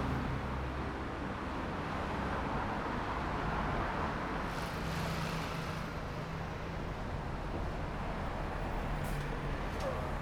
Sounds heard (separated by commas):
bus compressor, bus brakes, bus, car, bus wheels rolling, motorcycle engine accelerating, motorcycle, car wheels rolling